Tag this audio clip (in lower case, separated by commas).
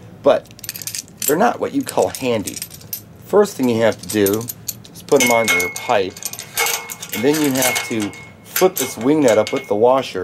speech